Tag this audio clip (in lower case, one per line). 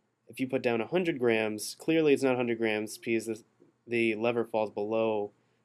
speech